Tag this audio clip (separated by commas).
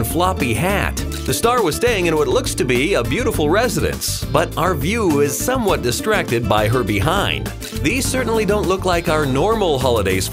Speech, Music